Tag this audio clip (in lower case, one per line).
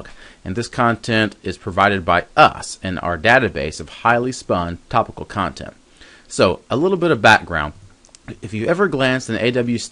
speech